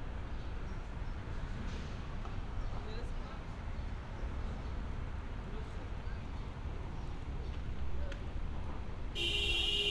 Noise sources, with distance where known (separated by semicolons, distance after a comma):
car horn, near; person or small group talking, far